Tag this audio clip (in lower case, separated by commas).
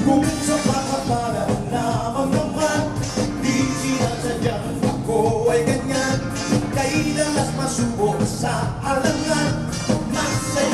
dance music, music, jazz